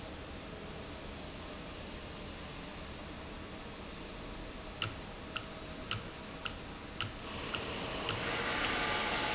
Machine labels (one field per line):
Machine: valve